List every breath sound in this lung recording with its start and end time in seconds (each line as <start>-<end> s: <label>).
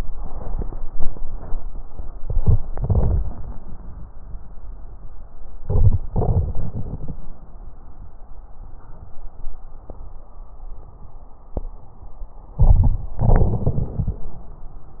2.21-2.60 s: inhalation
2.68-3.31 s: crackles
2.69-3.27 s: exhalation
5.62-5.99 s: inhalation
6.11-7.14 s: exhalation
12.59-13.13 s: inhalation
13.19-14.24 s: crackles
13.20-14.25 s: exhalation